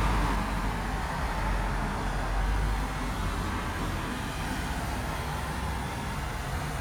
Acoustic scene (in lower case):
street